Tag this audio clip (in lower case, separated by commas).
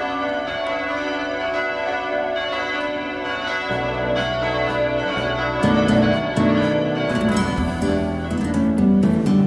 change ringing (campanology)